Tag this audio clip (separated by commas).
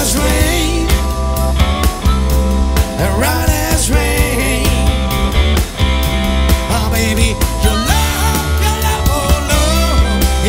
Music